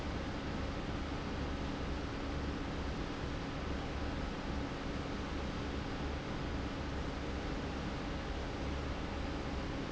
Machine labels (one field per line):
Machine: fan